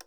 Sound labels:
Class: switch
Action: being turned off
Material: plastic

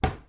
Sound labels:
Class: cupboard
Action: closing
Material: wooden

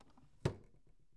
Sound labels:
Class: drawer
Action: closing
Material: wooden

